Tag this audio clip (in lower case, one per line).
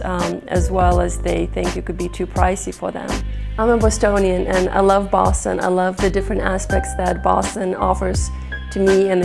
music
speech